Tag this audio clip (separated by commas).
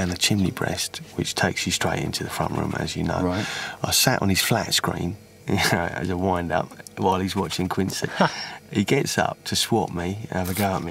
Speech